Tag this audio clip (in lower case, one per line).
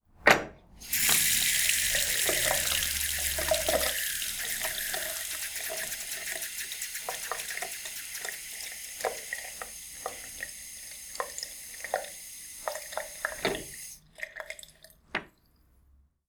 faucet
home sounds
sink (filling or washing)
liquid